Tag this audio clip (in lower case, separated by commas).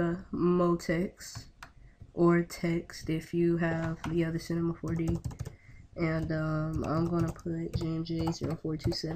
speech